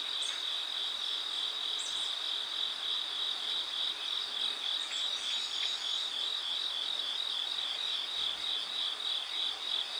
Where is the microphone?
in a park